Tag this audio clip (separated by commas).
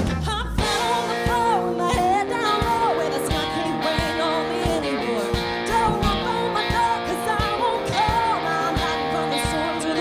Rhythm and blues, Music